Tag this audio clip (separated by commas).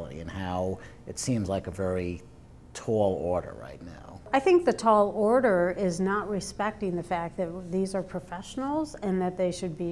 Speech